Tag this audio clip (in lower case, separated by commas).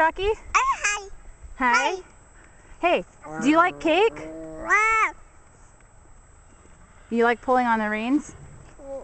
child speech, speech, outside, rural or natural